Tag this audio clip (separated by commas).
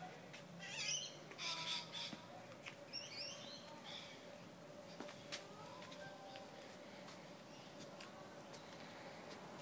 outside, rural or natural